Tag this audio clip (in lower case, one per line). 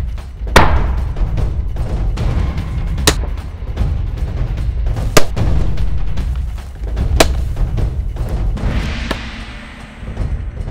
music